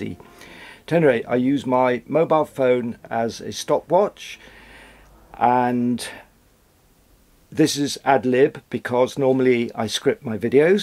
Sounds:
Speech

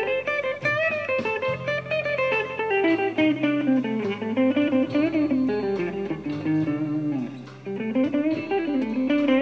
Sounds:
Music, Musical instrument, Guitar, Plucked string instrument, Speech

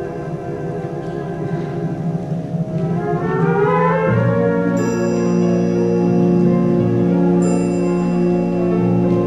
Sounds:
Music

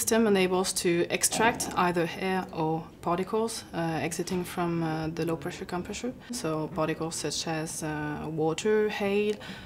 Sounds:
Speech

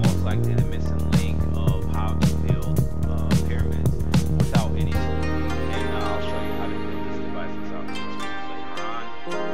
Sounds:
Speech

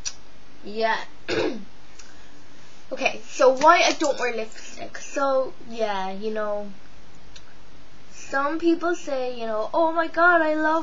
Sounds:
Speech

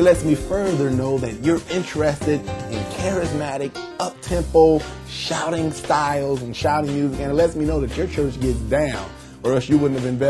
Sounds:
Speech, Gospel music, Music

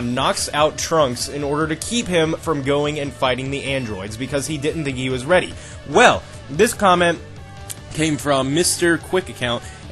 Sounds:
Music, Speech

